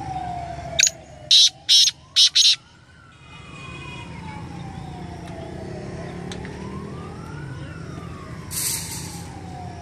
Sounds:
francolin calling

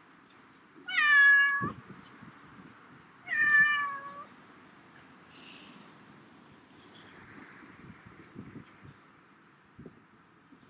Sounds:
cat meowing

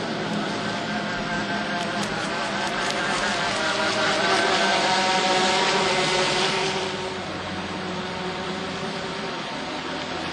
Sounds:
boat
motorboat
sailing ship
vehicle
speedboat

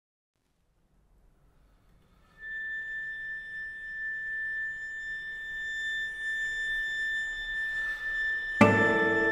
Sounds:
guitar
plucked string instrument
music
musical instrument
cello
bowed string instrument

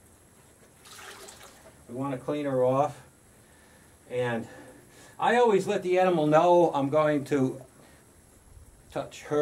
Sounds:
speech

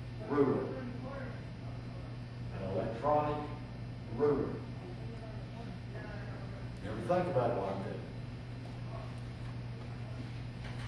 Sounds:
speech

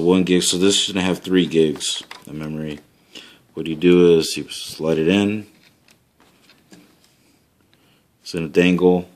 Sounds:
speech
inside a small room

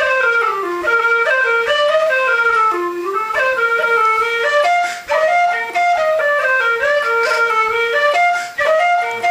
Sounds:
music

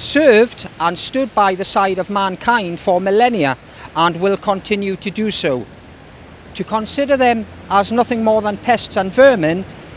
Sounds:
speech

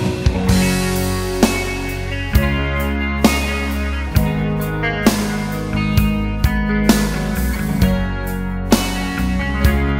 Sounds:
music

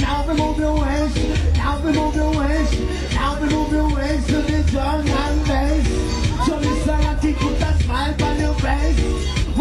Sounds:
speech
music

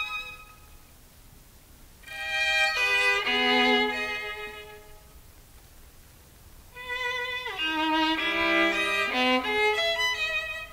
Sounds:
musical instrument
music
violin

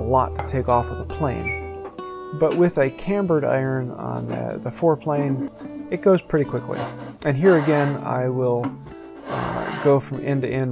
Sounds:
planing timber

